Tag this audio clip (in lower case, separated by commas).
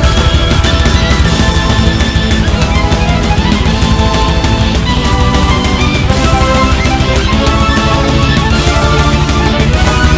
music